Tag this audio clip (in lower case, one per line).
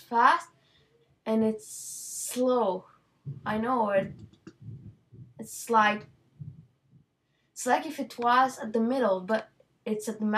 speech